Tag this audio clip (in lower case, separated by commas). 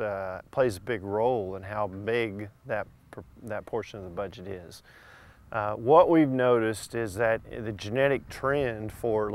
speech